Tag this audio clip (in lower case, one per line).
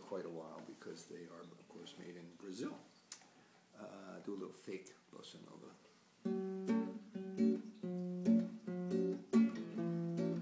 speech
acoustic guitar
music
musical instrument
guitar
plucked string instrument